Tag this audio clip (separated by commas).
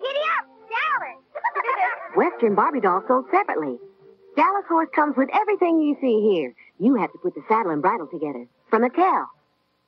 Music, Speech